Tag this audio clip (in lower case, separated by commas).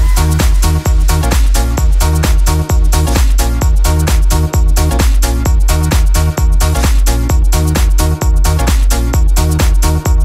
disco, music